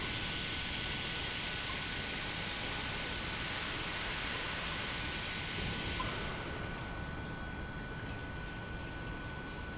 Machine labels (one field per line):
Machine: pump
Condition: normal